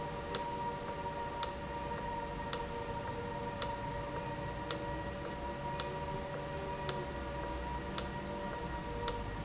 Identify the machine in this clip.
valve